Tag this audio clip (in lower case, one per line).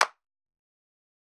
clapping
hands